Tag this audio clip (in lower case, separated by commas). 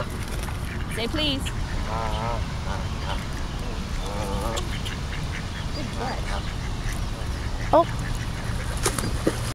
honk, fowl, goose